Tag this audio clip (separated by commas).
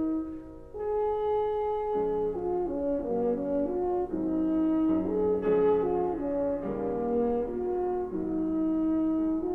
Brass instrument, French horn